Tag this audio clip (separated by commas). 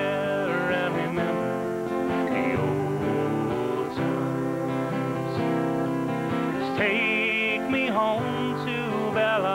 Music